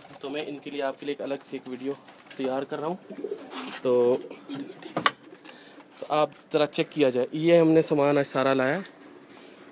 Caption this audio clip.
A man speaks as birds coo